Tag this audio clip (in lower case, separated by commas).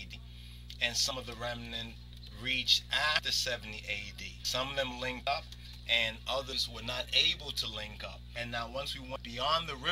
speech